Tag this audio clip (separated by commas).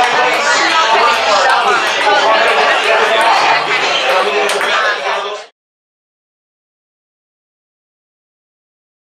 Speech, Ping